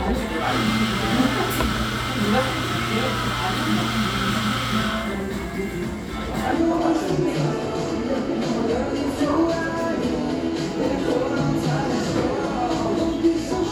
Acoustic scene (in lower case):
cafe